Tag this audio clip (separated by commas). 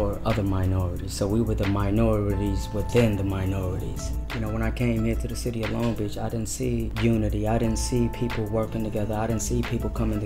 Speech, Music